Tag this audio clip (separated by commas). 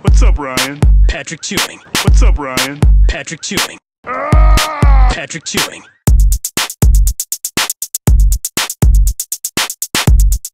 Speech, Music